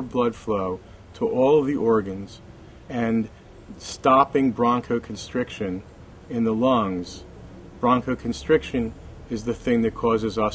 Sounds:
speech

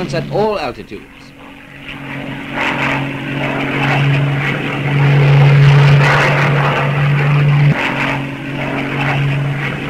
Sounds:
airplane flyby

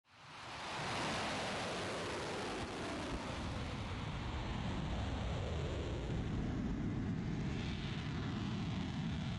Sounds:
missile launch

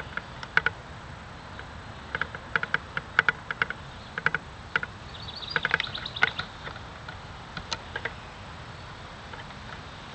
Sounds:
animal

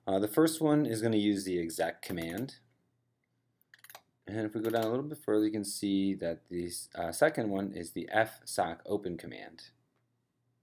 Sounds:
speech

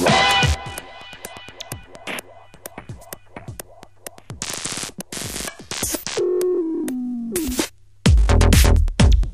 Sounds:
techno
electronic music
music

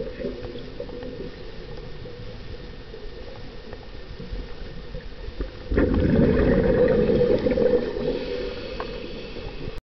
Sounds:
gurgling

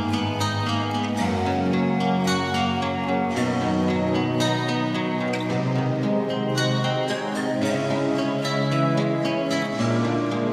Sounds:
music

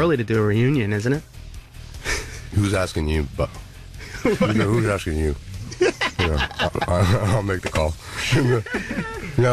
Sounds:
music
speech

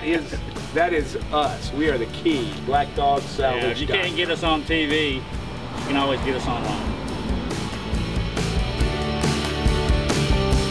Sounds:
speech
music

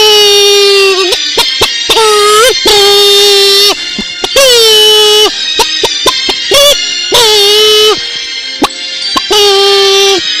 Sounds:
cluck
fowl
chicken

